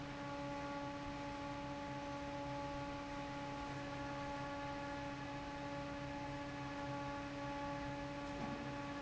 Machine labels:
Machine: fan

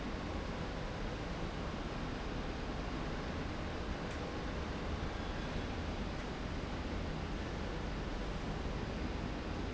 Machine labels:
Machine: slide rail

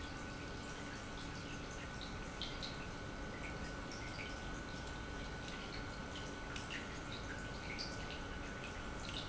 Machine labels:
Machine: pump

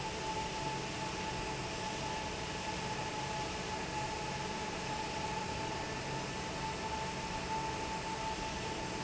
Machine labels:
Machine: fan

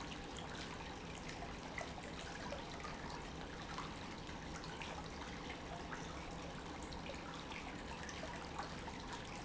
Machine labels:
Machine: pump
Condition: normal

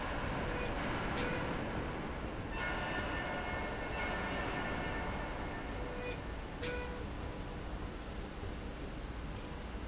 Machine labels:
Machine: slide rail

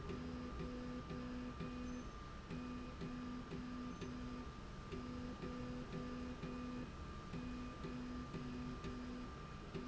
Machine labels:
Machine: slide rail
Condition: normal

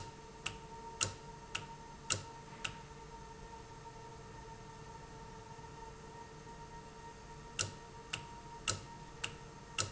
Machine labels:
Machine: valve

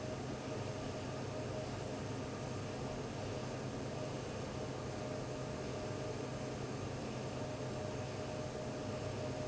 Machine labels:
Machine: fan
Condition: abnormal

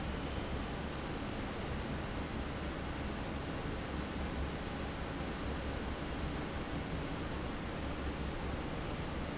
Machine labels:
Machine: fan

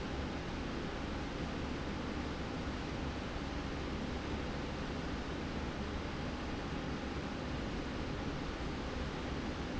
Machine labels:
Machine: slide rail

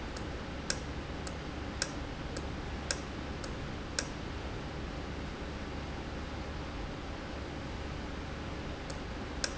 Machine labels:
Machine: valve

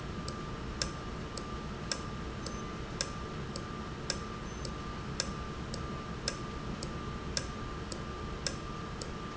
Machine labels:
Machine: valve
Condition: normal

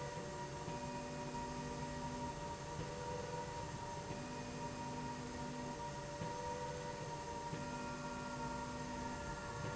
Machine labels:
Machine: slide rail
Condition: normal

